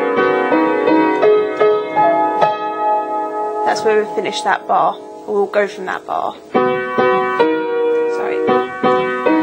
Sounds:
music
speech

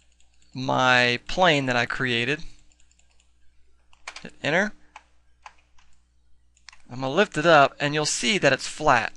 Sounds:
speech

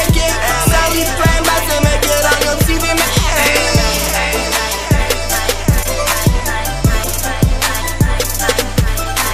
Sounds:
music
rhythm and blues

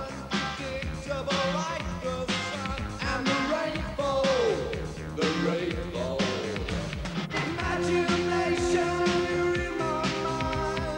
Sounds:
music

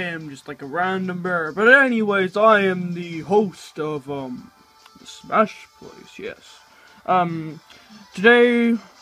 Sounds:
speech

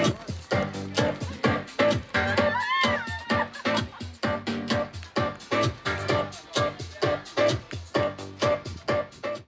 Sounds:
music
speech

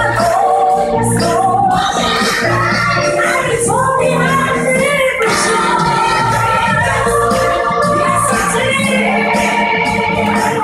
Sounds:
music
choir
female singing

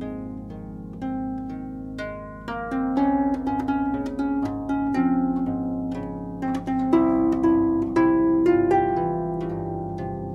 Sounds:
music

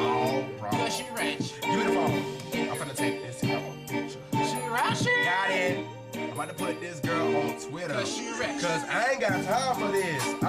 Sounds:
music

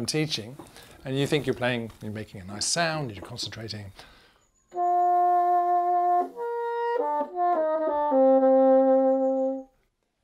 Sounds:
playing bassoon

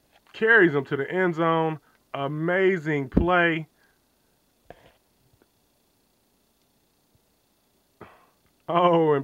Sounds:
speech

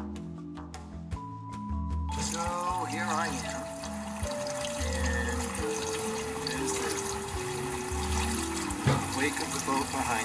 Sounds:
speech
vehicle
music
boat

